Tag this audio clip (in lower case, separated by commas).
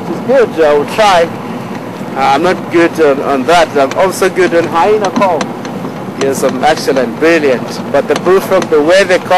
speech